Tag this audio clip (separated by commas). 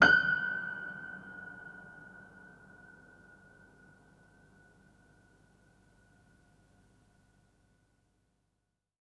Keyboard (musical), Musical instrument, Music, Piano